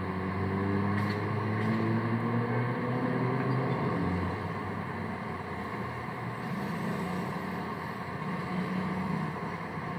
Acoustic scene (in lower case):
street